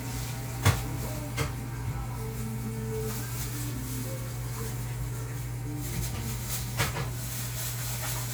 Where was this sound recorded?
in a cafe